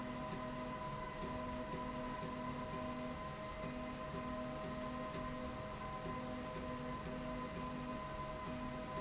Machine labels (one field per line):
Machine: slide rail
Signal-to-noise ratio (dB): 0 dB